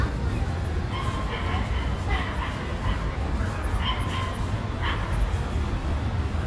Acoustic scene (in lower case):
residential area